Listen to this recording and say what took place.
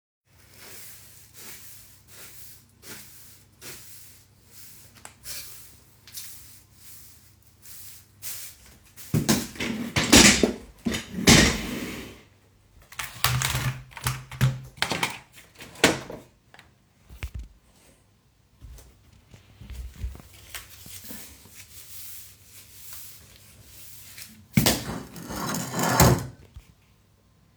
Cleaning my bedroom with broom and moving my chairs and other utensils, while i replied quickly with keyboard on my computer